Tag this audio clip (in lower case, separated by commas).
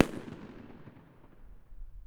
explosion, fireworks